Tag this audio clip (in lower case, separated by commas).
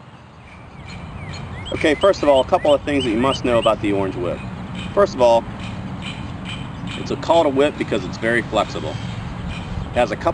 speech